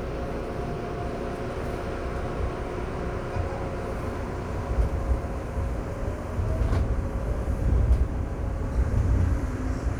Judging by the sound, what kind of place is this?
subway train